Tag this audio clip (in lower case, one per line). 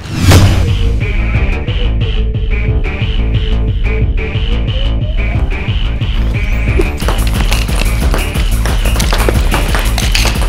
music